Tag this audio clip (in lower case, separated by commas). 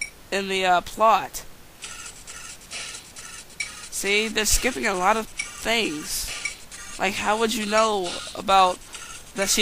speech